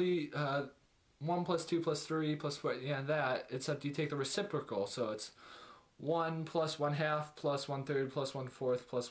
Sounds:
speech

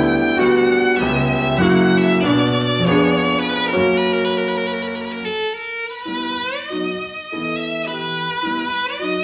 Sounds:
music, violin, musical instrument

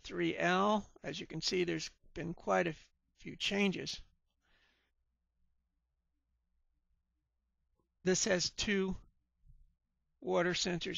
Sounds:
speech

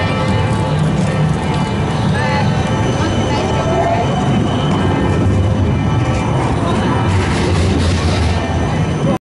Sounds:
vehicle, speech

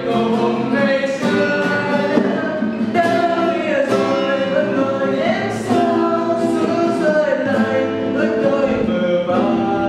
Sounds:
music, strum, guitar, plucked string instrument, musical instrument

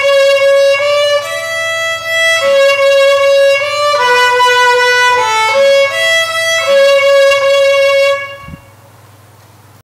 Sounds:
musical instrument, violin, music

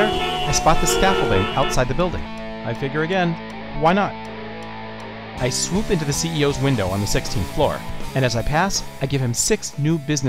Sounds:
music, speech

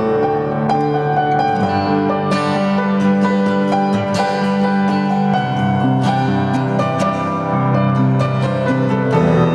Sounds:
guitar, acoustic guitar, musical instrument, plucked string instrument, strum, music

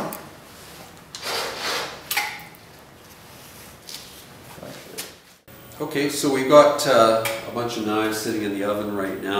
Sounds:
speech, inside a small room

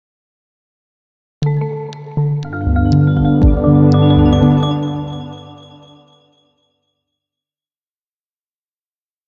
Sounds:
music

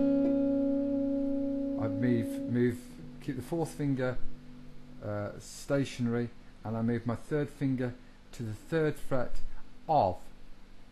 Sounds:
music, speech

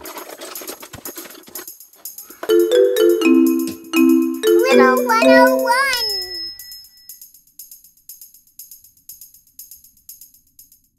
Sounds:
kid speaking, speech, music, vibraphone

